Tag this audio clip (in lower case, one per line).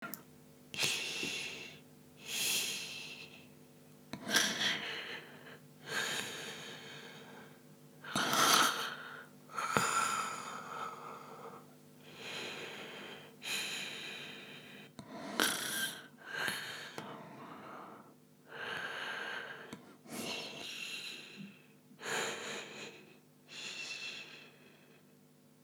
respiratory sounds
breathing